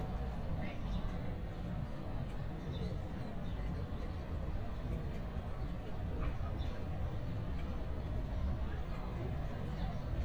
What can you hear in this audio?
person or small group talking